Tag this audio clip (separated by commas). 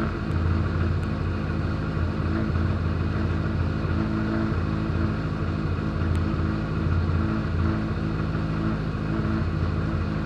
Vehicle, Car